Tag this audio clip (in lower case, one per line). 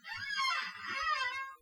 squeak